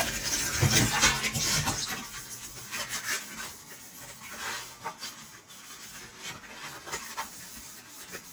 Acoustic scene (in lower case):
kitchen